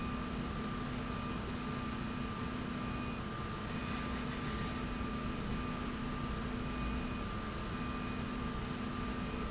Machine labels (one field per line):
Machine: slide rail